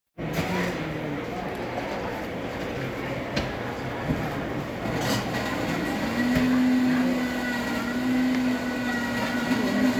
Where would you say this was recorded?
in a cafe